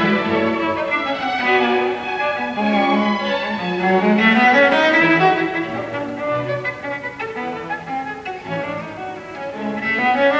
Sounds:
String section

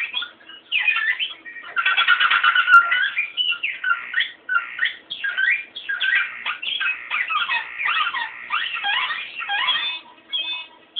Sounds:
Music

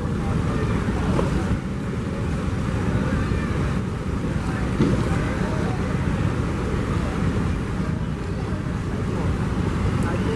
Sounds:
missile launch

